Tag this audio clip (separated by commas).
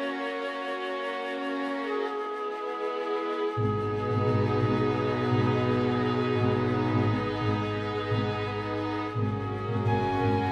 Background music, Music